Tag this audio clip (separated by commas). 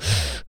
Respiratory sounds, Breathing